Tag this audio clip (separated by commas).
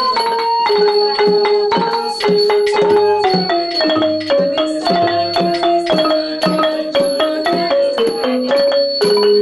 Music